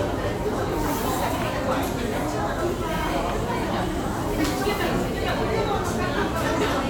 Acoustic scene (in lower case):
crowded indoor space